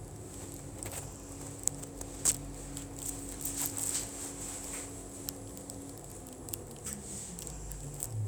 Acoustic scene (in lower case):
elevator